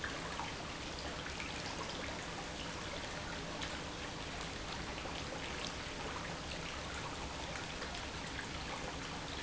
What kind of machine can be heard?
pump